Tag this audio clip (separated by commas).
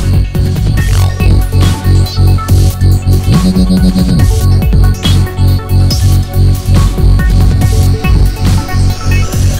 Musical instrument, Trance music, Music, Dubstep, Synthesizer, Electronic music